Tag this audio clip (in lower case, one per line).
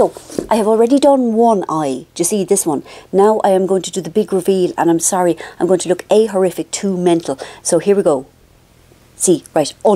speech